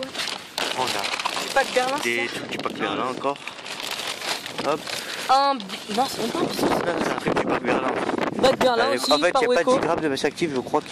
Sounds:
speech

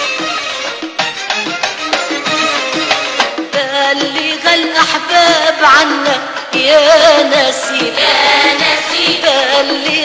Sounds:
theme music, music

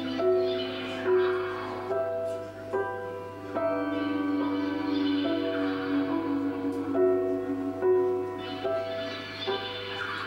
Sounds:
music

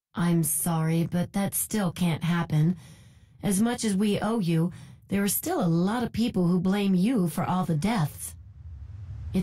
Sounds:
speech

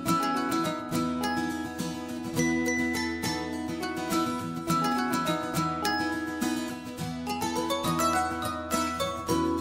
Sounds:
mandolin, music

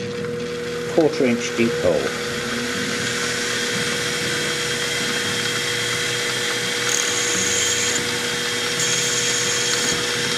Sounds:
speech, drill, tools

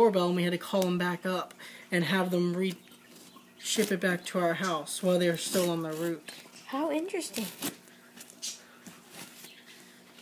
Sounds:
speech, animal, inside a small room

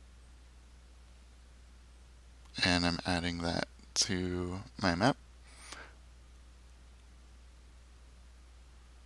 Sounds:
speech

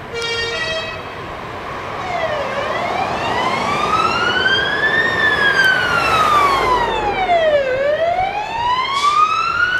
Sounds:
emergency vehicle, fire truck (siren), vehicle, truck

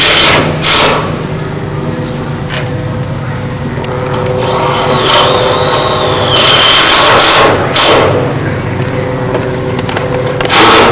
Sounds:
vehicle

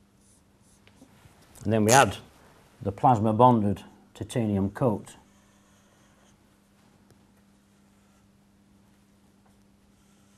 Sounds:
speech, writing

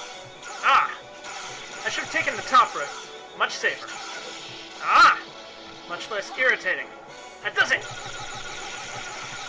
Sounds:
speech, outside, urban or man-made

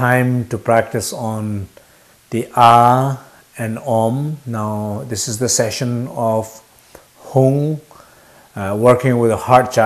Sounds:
speech

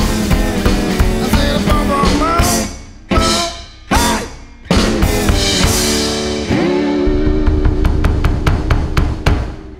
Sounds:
playing bass drum

